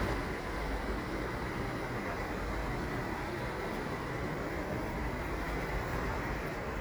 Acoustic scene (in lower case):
park